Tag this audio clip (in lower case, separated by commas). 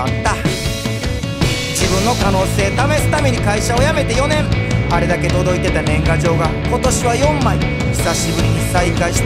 music